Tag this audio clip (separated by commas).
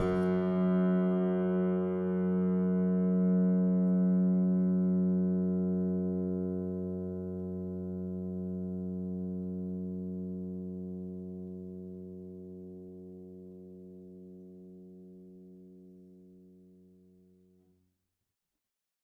Musical instrument, Keyboard (musical), Piano, Music